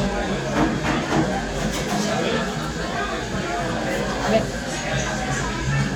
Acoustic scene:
crowded indoor space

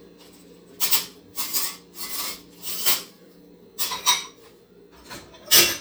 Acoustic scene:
kitchen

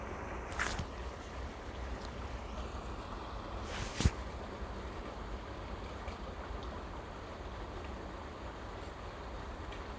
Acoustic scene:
park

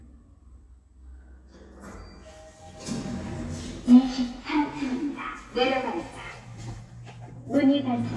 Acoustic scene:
elevator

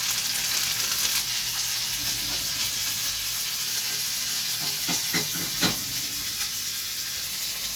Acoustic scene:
kitchen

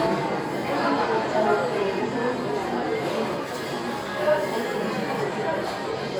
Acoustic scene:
crowded indoor space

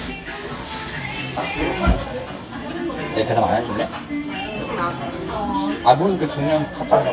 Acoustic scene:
restaurant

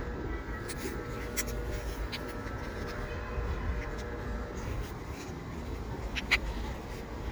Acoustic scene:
residential area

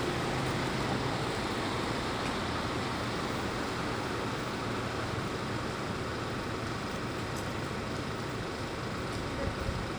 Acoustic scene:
street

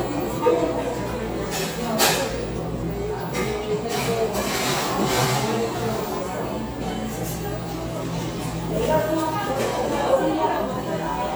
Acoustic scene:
cafe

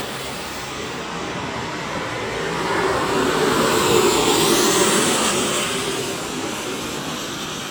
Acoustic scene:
street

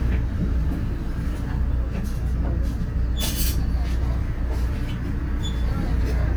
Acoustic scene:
bus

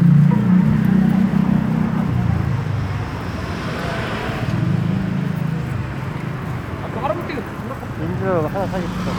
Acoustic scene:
street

